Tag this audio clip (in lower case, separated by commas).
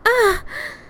breathing, human voice, gasp, respiratory sounds